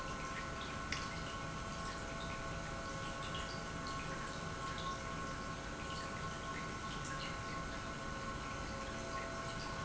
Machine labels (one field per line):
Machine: pump